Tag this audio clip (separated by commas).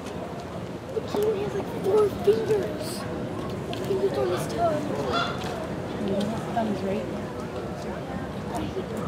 gibbon howling